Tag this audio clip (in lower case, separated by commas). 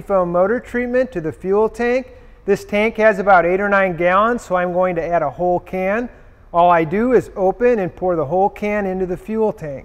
speech